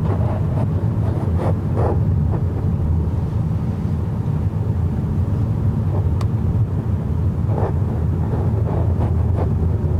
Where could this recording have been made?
in a car